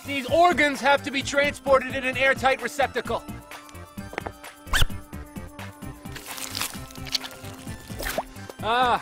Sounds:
music
speech
drip

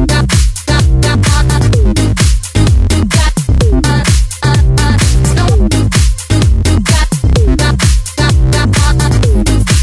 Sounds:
disco
music

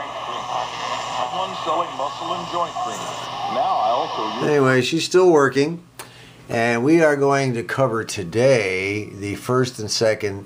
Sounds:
radio
speech

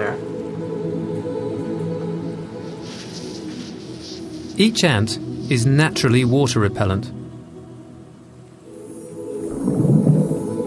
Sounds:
music
insect
speech

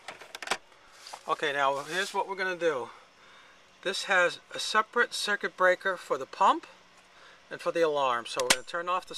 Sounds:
speech

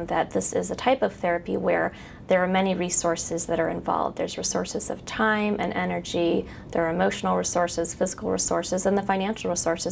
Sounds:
speech
inside a small room

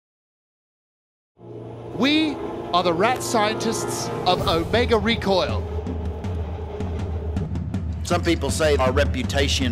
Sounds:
music
speech

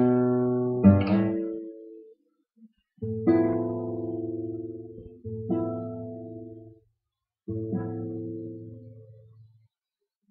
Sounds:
musical instrument
guitar
plucked string instrument
music
acoustic guitar

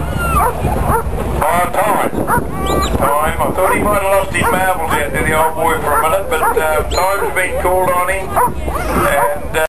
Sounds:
bow-wow
speech

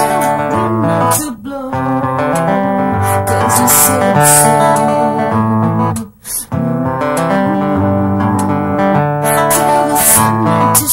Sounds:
zither

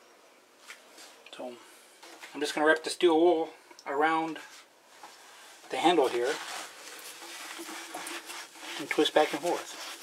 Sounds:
eating with cutlery

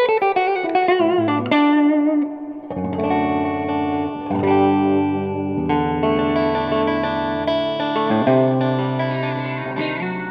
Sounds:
music

